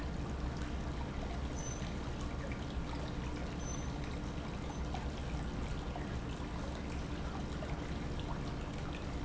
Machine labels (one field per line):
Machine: pump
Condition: normal